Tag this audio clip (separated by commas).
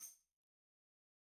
Percussion, Tambourine, Music, Musical instrument